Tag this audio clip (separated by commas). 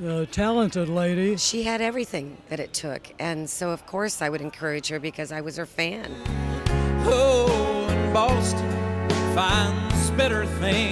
Music, Speech, Country